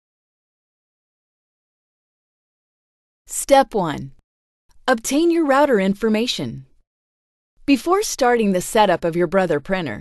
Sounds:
Speech

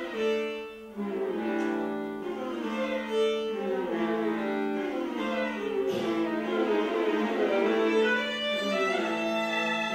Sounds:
fiddle, playing cello, Musical instrument, Music, Cello, Bowed string instrument

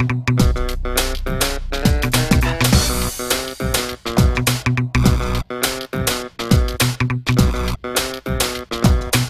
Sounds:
Music

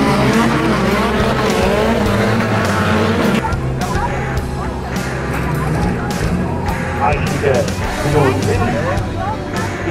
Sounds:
Speech, Car, Car passing by, Motor vehicle (road), Vehicle, Music

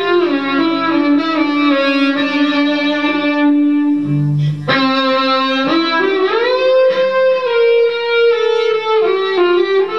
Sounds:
Music

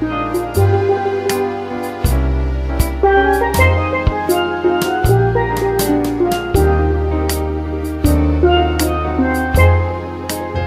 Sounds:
Music

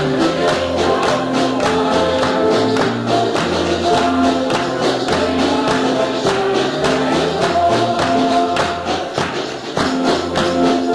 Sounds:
Music

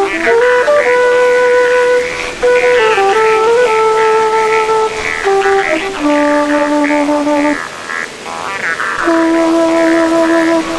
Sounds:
Ocean

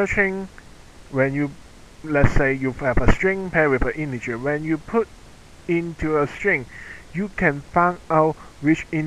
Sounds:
Narration

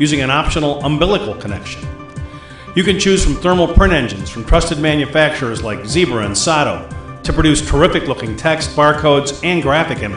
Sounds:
Music, Speech

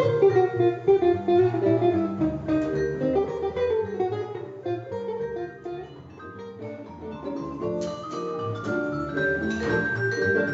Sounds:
playing vibraphone

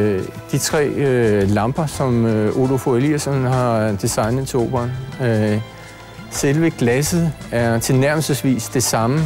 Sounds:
Speech, Music

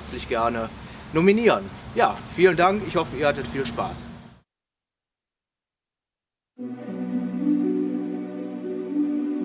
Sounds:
Speech, Music

